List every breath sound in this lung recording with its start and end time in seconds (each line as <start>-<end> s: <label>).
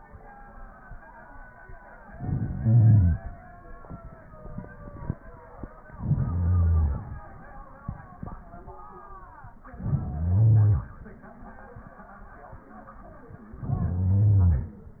1.98-3.25 s: inhalation
5.90-7.17 s: inhalation
9.70-10.97 s: inhalation
13.53-14.80 s: inhalation